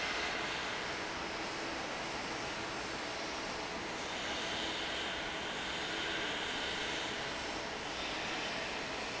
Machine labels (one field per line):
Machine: fan